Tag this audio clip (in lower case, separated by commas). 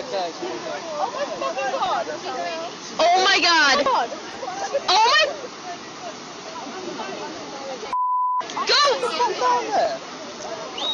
speech